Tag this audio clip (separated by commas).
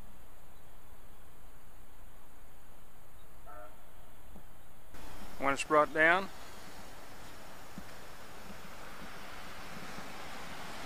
Speech